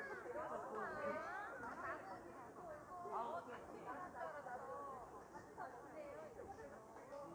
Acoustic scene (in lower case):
park